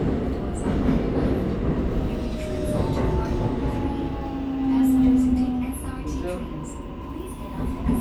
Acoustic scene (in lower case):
subway train